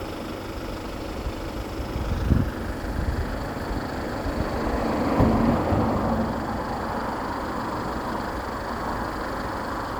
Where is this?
on a street